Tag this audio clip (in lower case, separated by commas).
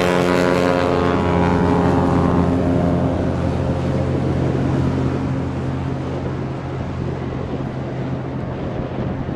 aircraft, outside, rural or natural, vehicle